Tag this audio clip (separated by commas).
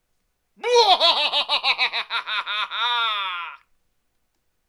Human voice, Laughter